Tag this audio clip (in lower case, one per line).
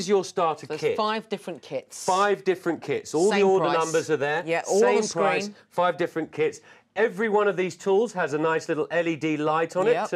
speech